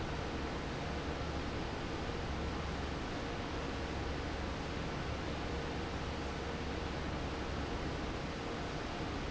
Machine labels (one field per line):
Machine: fan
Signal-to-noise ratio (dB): -6 dB